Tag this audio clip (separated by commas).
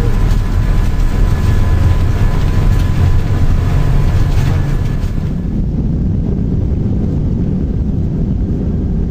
Aircraft, Vehicle, Fixed-wing aircraft